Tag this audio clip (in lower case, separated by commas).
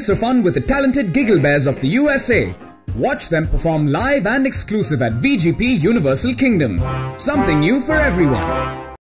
music, speech